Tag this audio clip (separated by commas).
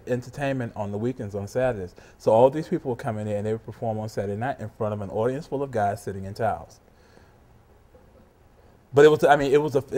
Speech